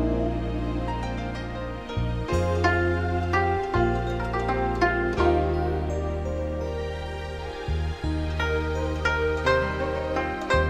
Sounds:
music, new-age music

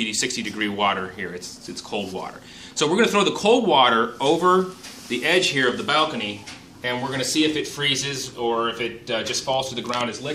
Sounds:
speech

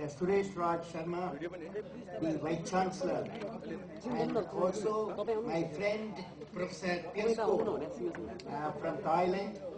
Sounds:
speech, male speech

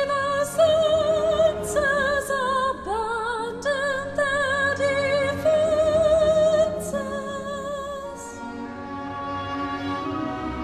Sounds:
music, opera

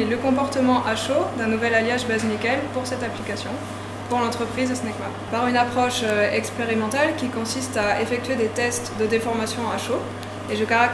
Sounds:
speech

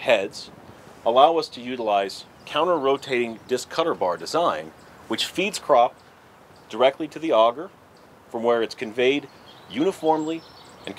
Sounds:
speech

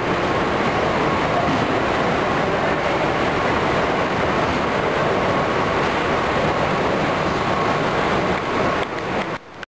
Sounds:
vehicle

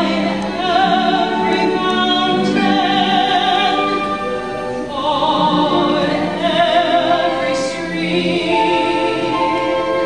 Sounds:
music, opera

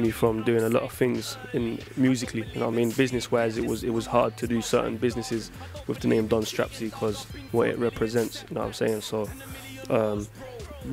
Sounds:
music, speech

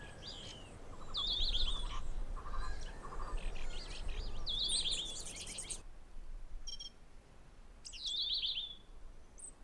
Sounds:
outside, rural or natural, bird

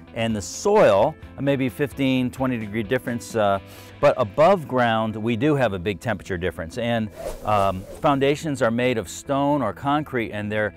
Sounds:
music, speech

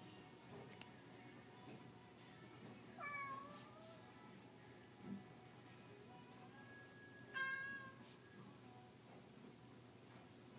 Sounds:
meow

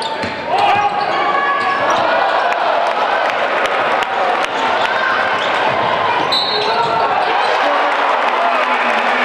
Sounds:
basketball bounce

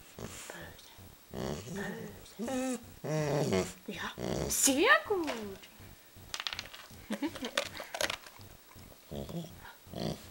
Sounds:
dog growling

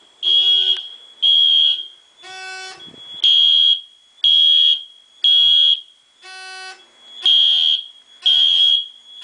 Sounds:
smoke detector, fire alarm

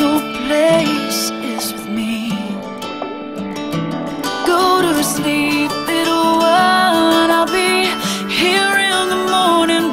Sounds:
music, lullaby

